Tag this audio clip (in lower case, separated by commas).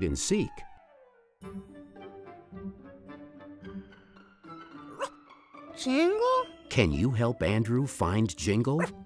speech, music